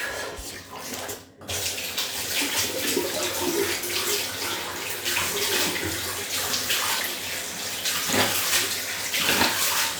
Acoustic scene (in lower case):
restroom